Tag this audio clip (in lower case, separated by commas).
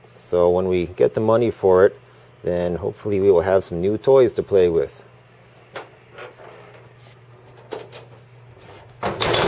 speech, inside a small room